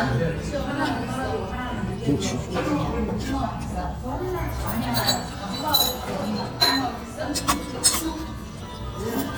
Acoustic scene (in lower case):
restaurant